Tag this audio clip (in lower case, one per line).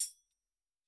tambourine
percussion
music
musical instrument